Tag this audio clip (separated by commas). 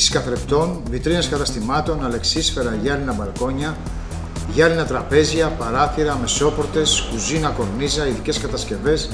Speech, Music